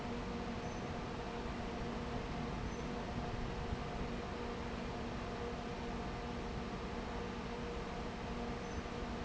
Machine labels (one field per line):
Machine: fan